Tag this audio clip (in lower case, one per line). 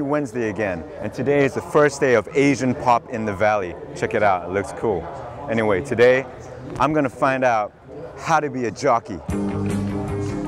speech
music